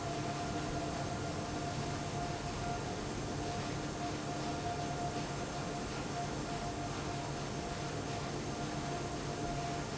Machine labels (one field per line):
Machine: fan